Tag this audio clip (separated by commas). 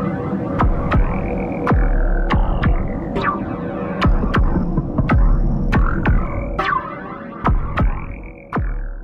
Throbbing, Hum